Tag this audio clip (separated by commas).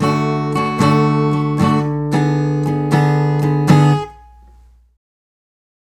Music, Guitar, Musical instrument, Strum, Plucked string instrument, Acoustic guitar